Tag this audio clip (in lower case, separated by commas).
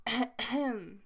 cough, respiratory sounds